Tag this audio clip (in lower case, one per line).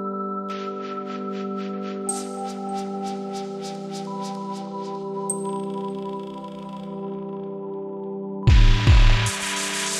music